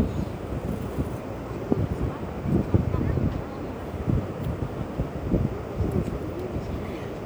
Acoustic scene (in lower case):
park